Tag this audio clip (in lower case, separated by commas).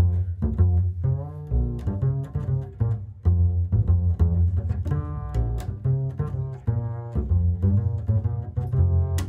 double bass, bowed string instrument, pizzicato, cello